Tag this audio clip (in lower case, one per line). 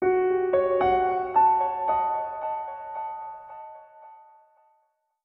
musical instrument
keyboard (musical)
piano
music